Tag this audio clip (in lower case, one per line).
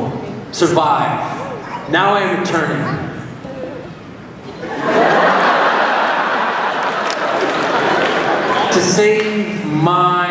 speech